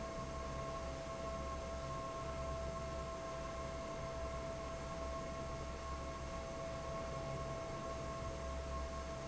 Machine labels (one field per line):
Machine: fan